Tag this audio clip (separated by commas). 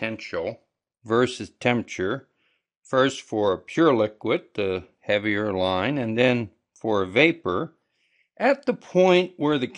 Speech